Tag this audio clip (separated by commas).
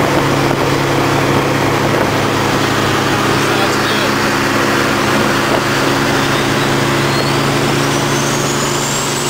Race car, Vehicle, Car